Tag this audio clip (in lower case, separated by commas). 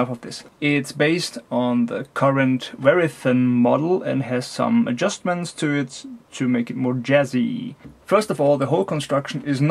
speech